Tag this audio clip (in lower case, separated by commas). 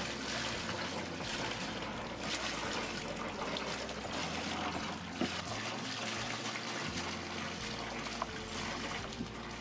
vehicle, boat, motorboat